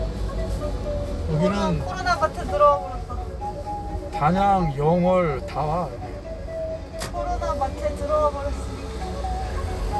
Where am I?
in a car